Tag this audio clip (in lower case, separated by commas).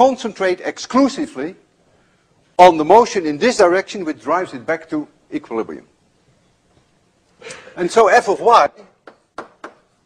speech